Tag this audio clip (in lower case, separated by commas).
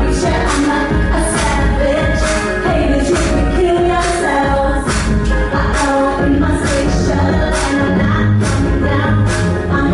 rhythm and blues, blues, music